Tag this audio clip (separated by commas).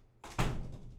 Door, Slam, Domestic sounds